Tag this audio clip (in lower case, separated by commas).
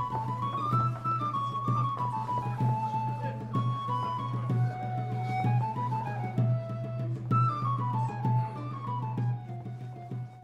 music, jazz